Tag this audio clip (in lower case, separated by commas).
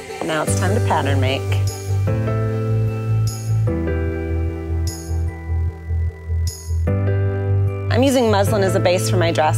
speech, music